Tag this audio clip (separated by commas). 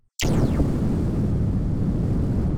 Explosion